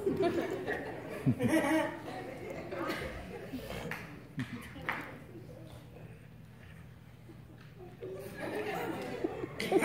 People laughing with some light distant clicks